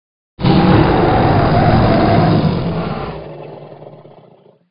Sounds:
Animal, Wild animals

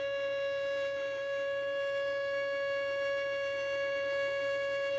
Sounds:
Bowed string instrument, Musical instrument, Music

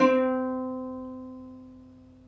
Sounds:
Music, Plucked string instrument, Musical instrument

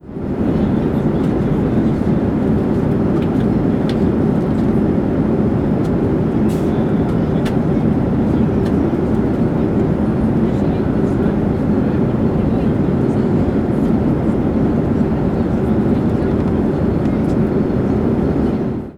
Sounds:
Fixed-wing aircraft, Aircraft, Vehicle, Chatter, Human group actions

